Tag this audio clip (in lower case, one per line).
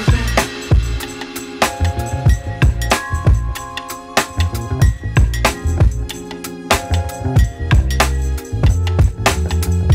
christmas music